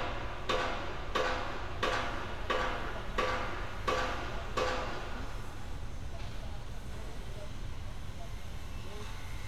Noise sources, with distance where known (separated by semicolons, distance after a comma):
pile driver